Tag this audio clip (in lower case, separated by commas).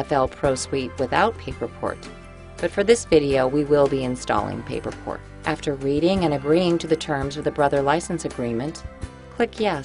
speech, music